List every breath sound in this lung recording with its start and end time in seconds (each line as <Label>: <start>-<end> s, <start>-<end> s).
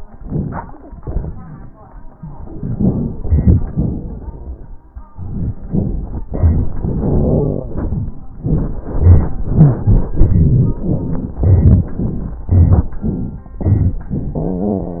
Inhalation: 0.19-0.83 s, 11.32-11.99 s, 12.41-13.01 s, 13.62-14.10 s
Exhalation: 0.83-1.89 s, 12.00-12.41 s, 13.01-13.62 s, 14.12-15.00 s
Wheeze: 14.14-15.00 s
Crackles: 0.20-0.81 s, 0.83-1.89 s, 11.32-11.99 s, 12.00-12.41 s, 12.41-13.01 s, 13.01-13.62 s, 13.63-14.32 s